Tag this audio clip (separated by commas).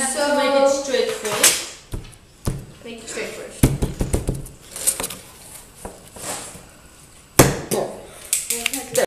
Speech